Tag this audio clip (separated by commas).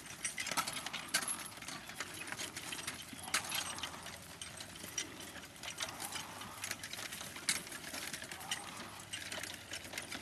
horse clip-clop, Animal, Clip-clop